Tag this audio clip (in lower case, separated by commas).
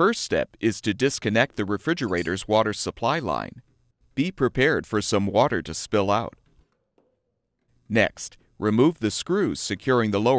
speech